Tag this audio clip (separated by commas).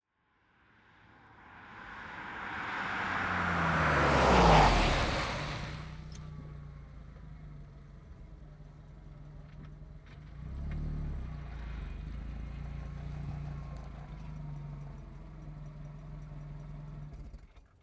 Vehicle, Car, Car passing by, Motor vehicle (road)